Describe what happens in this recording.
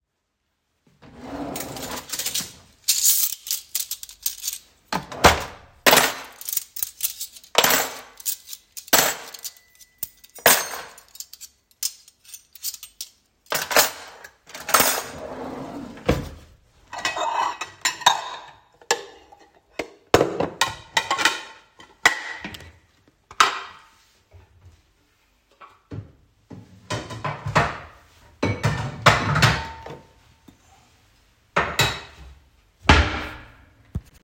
I firstly opened the drawer, picked up the cutlery from dishes drying tray, sorted them out, put them back into the drawer and then closed the drawer. Afterwards, I pick up bowls and dishes, opened the cupboard and put them back